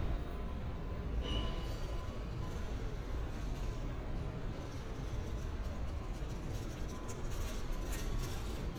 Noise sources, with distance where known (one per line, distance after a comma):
engine of unclear size
non-machinery impact